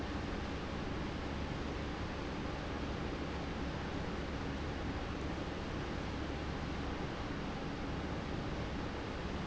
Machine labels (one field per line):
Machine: pump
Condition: normal